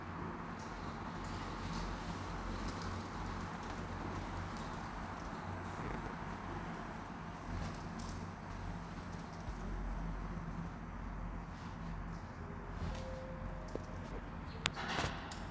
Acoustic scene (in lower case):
elevator